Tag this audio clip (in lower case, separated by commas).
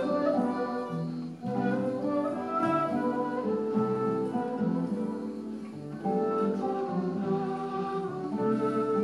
acoustic guitar, music, musical instrument, guitar